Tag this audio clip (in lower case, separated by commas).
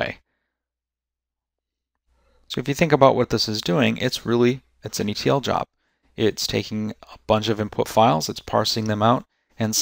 speech